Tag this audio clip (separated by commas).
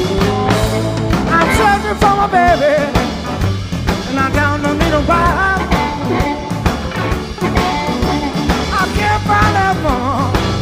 Rock and roll, Singing, Music